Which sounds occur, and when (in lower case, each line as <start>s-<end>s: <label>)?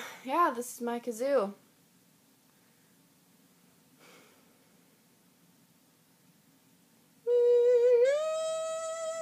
0.0s-0.3s: breathing
0.0s-9.2s: background noise
0.2s-1.5s: woman speaking
2.5s-3.0s: breathing
4.0s-4.4s: breathing
7.3s-9.2s: humming